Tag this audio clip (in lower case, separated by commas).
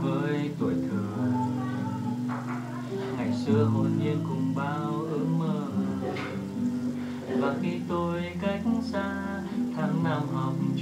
strum, guitar, music, acoustic guitar, plucked string instrument, musical instrument, speech